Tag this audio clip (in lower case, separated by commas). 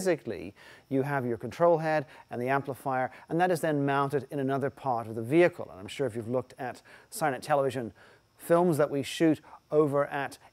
speech